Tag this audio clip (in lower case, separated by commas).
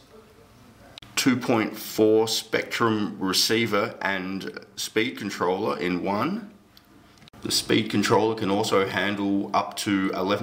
speech